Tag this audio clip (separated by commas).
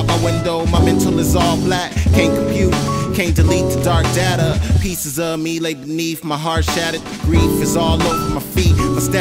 Hip hop music, Rapping, Music